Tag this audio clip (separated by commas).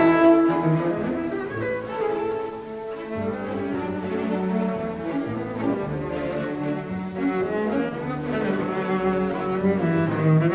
playing double bass